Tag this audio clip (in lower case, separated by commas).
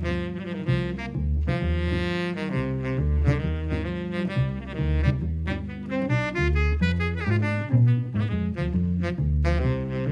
brass instrument, saxophone